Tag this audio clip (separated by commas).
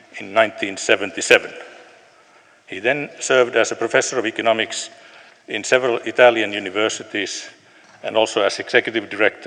Male speech, Speech, monologue